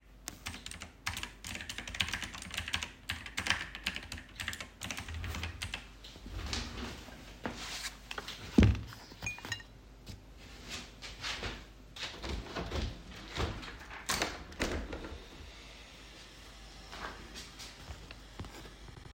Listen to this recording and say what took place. I am typing on my keyboard, I take off my headphones, accidentaly touch the mug on the table with the headphones, stand up, open the window. Outside noise heard in the end.